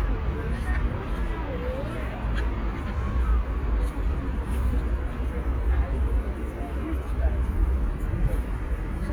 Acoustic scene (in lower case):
residential area